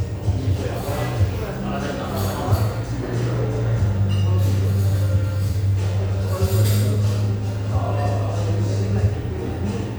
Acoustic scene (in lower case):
cafe